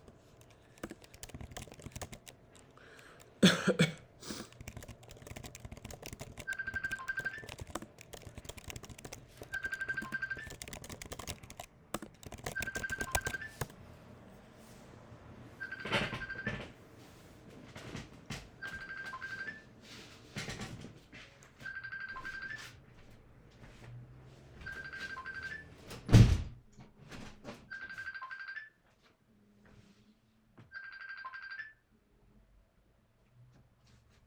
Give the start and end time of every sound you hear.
[0.74, 2.81] keyboard typing
[4.34, 13.96] keyboard typing
[6.75, 32.66] phone ringing
[25.76, 26.72] window

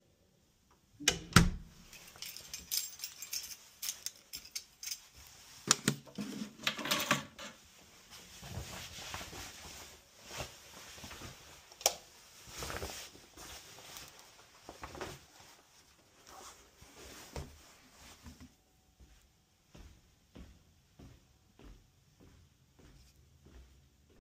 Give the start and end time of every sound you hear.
[1.06, 1.62] door
[2.19, 5.12] keys
[6.59, 7.57] keys
[11.81, 12.07] light switch
[19.72, 22.75] footsteps

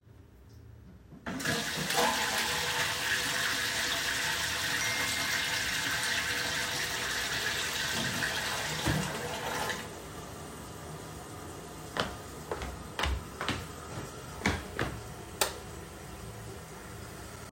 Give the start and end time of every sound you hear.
[1.25, 17.51] toilet flushing
[4.80, 5.36] phone ringing
[11.93, 15.00] footsteps
[15.35, 15.61] light switch

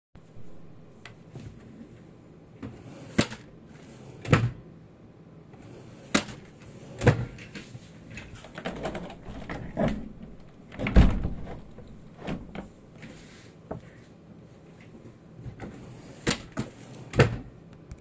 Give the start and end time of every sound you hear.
[2.58, 7.93] wardrobe or drawer
[8.00, 13.89] window
[16.19, 17.65] wardrobe or drawer

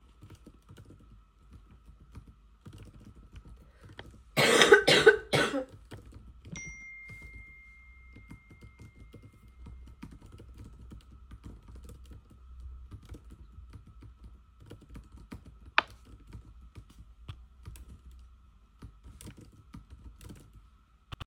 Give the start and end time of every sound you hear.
[0.03, 21.11] keyboard typing
[6.48, 10.22] phone ringing

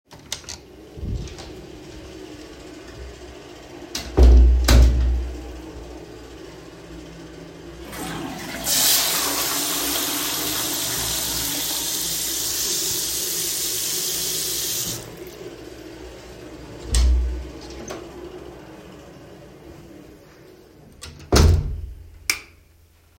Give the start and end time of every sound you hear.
[0.00, 0.95] door
[3.42, 5.49] door
[8.07, 15.66] toilet flushing
[8.67, 15.02] running water
[16.74, 18.70] door
[21.02, 23.01] door
[22.16, 22.70] light switch

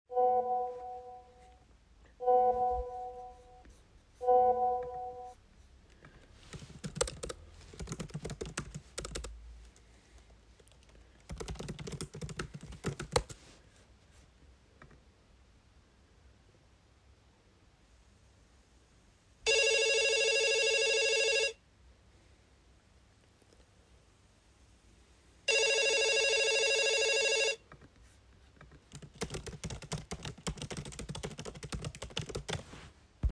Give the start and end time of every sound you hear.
[0.09, 1.36] phone ringing
[2.18, 3.40] phone ringing
[4.16, 5.50] phone ringing
[6.37, 13.75] keyboard typing
[19.32, 21.75] phone ringing
[25.35, 27.75] phone ringing
[28.62, 33.32] keyboard typing

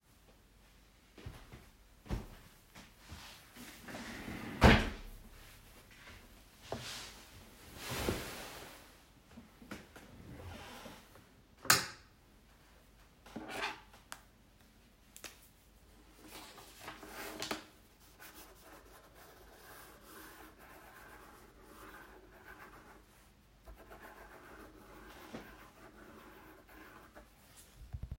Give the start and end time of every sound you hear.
[1.17, 2.34] footsteps
[11.36, 12.18] light switch

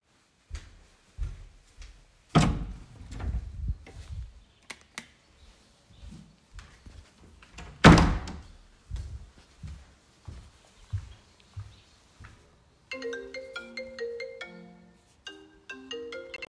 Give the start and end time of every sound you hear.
[0.40, 2.29] footsteps
[2.29, 4.30] door
[4.55, 5.28] light switch
[5.39, 7.33] footsteps
[7.60, 8.62] door
[8.82, 12.48] footsteps
[12.83, 16.49] phone ringing

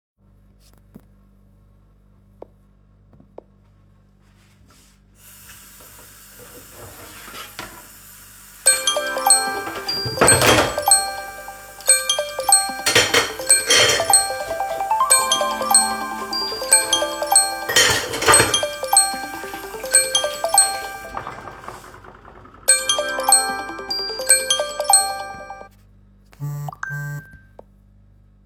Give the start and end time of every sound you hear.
[5.18, 21.47] running water
[8.58, 21.80] phone ringing
[10.14, 11.18] cutlery and dishes
[12.81, 14.91] cutlery and dishes
[17.68, 19.25] cutlery and dishes
[22.52, 25.76] phone ringing
[26.26, 27.75] phone ringing

